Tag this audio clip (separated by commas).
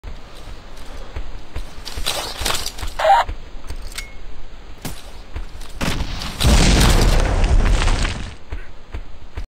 Explosion